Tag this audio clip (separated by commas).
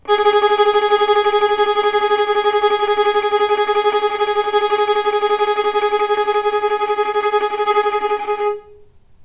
Bowed string instrument, Music, Musical instrument